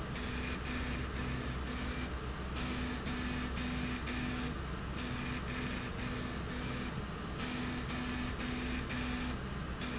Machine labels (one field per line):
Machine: slide rail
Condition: abnormal